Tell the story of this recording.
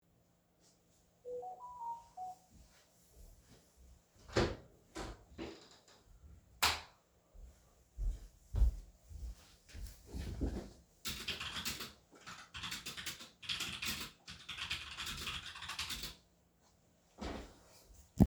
I get a notification, I open the door, walk to my PC and start typing a message.